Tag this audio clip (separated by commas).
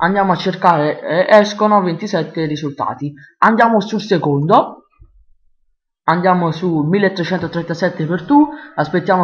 Speech